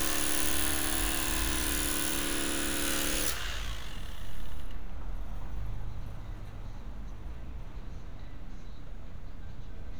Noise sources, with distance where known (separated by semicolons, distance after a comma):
unidentified powered saw, near